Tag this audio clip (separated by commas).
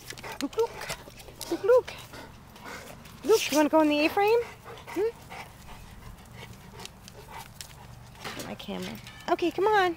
Speech